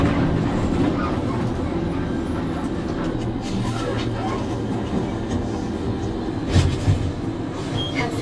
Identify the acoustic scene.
bus